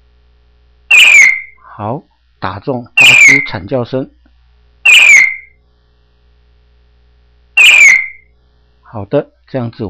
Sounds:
Speech

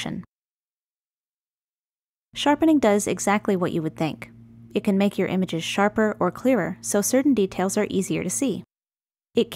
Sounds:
Speech

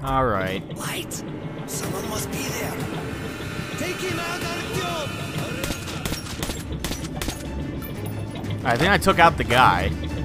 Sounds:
Speech, Music

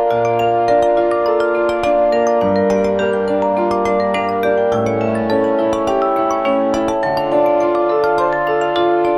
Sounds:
Music

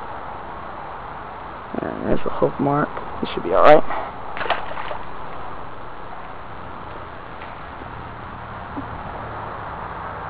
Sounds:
Speech, outside, rural or natural

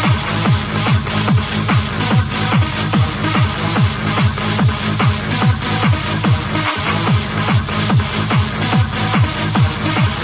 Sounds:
people shuffling

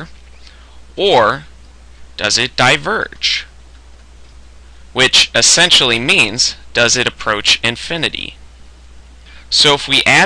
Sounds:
Speech

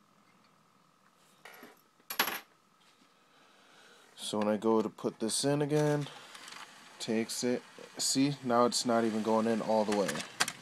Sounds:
Speech

